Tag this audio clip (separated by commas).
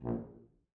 Music, Musical instrument, Brass instrument